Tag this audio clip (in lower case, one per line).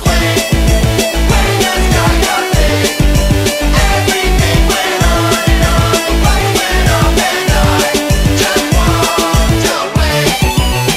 music